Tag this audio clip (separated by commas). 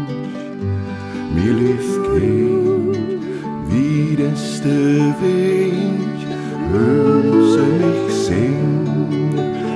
Music